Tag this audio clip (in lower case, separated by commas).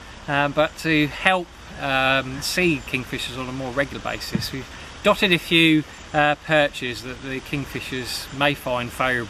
speech